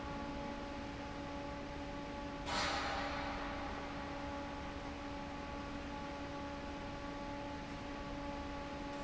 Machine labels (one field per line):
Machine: fan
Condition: normal